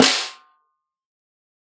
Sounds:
music
drum
percussion
snare drum
musical instrument

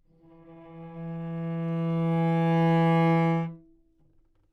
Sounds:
music
musical instrument
bowed string instrument

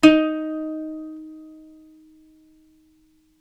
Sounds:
musical instrument
music
plucked string instrument

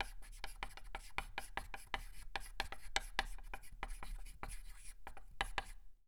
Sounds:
domestic sounds
writing

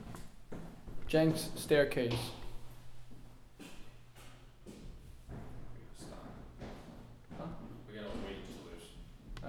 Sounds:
walk

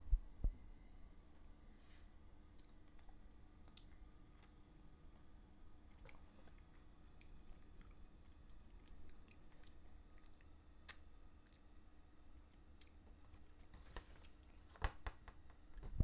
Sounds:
chewing

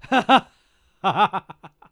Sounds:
human voice
laughter

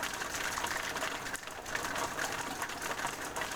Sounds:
rain
water

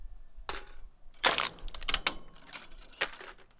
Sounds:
crushing

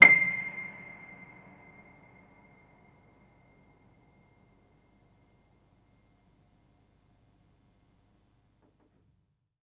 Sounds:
piano
musical instrument
keyboard (musical)
music

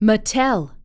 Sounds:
human voice
speech
female speech

